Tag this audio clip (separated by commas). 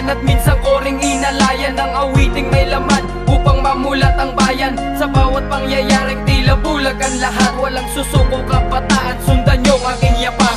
Music